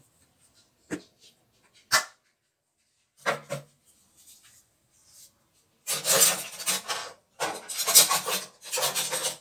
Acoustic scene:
kitchen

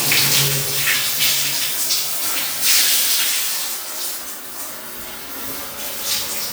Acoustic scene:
restroom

